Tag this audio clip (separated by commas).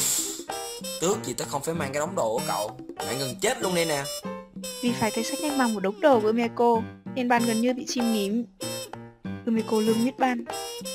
Speech, Music